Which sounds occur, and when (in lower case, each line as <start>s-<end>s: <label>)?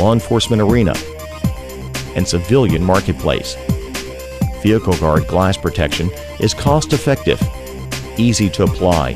0.0s-9.1s: music
0.0s-1.1s: male speech
1.8s-3.5s: male speech
4.6s-6.0s: male speech
6.4s-7.4s: male speech
8.1s-9.1s: male speech